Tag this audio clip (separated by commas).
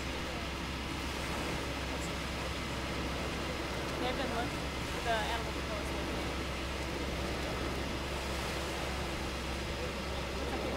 Speech